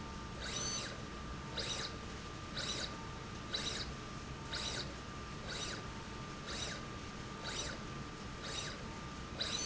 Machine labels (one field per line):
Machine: slide rail